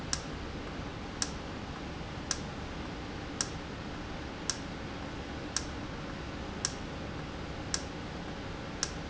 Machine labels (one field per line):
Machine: valve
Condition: normal